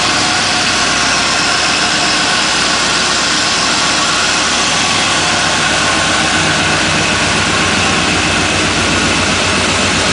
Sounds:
Vehicle

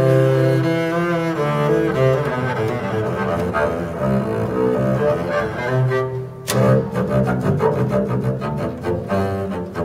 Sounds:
playing cello, Bowed string instrument, Cello, Double bass

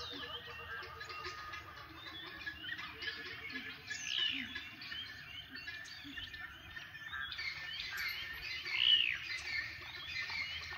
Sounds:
Bird vocalization, bird chirping, tweet, Bird

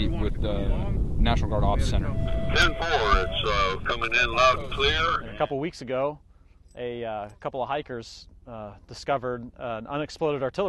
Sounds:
Speech

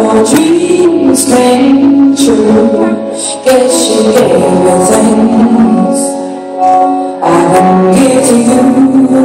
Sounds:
Music, Female singing

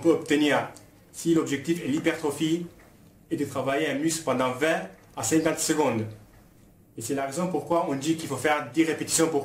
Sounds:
Speech

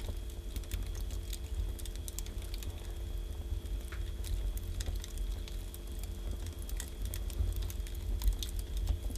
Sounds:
fire crackling

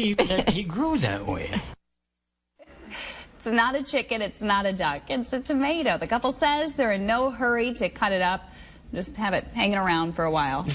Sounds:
Speech

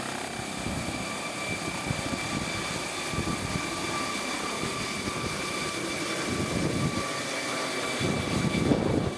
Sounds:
airplane, Helicopter, Vehicle, Aircraft

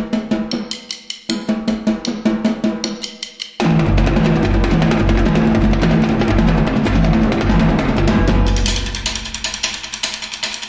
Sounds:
Percussion, Drum, Snare drum, Music

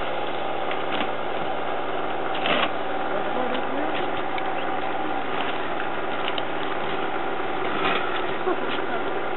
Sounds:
Speech, Chainsaw

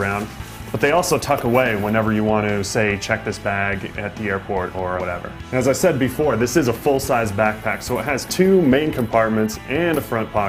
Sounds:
Music, Speech

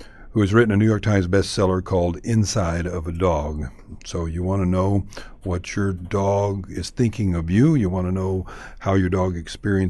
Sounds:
Speech

